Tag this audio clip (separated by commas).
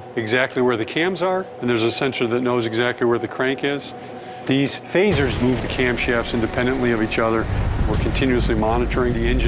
Music, Speech